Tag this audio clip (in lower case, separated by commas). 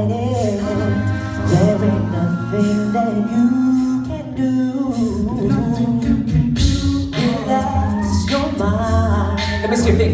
speech, vocal music, singing, music